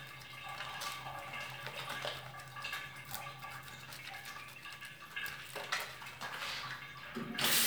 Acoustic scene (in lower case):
restroom